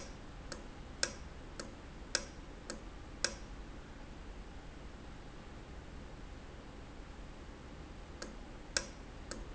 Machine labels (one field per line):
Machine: valve